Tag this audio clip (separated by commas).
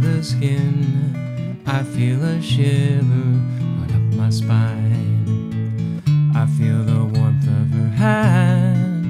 Music